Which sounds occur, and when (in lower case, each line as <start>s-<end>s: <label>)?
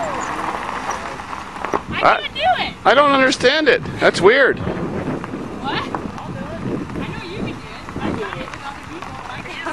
0.0s-2.0s: car
0.0s-9.7s: conversation
0.0s-9.7s: wind
0.0s-0.1s: human voice
0.1s-0.2s: squeal
0.8s-1.1s: man speaking
0.8s-0.9s: squeal
1.6s-1.8s: generic impact sounds
1.8s-2.7s: woman speaking
1.8s-2.1s: wind noise (microphone)
2.8s-4.5s: man speaking
3.7s-7.7s: wind noise (microphone)
4.7s-9.7s: car
5.5s-6.0s: woman speaking
6.1s-6.6s: man speaking
6.1s-6.2s: tick
6.9s-7.7s: woman speaking
7.9s-9.0s: woman speaking
7.9s-8.4s: wind noise (microphone)
8.8s-9.6s: wind noise (microphone)
9.0s-9.2s: man speaking
9.2s-9.7s: woman speaking
9.4s-9.7s: laughter